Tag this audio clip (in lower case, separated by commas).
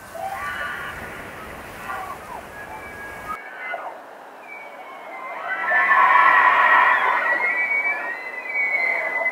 elk bugling